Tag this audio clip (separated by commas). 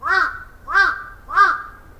Animal, Wild animals, Bird, Bird vocalization, Crow